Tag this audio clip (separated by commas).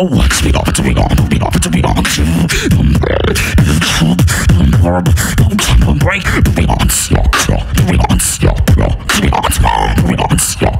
beat boxing